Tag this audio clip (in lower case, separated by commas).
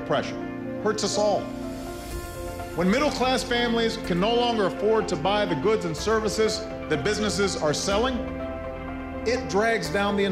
music, speech, man speaking